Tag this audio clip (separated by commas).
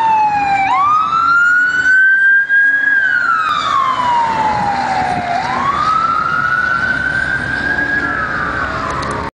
Fire engine, Engine, Medium engine (mid frequency), Idling, Accelerating, Vehicle, Emergency vehicle